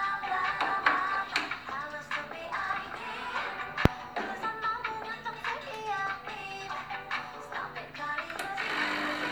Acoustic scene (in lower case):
cafe